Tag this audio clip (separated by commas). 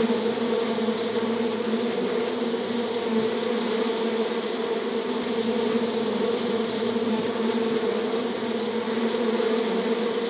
bee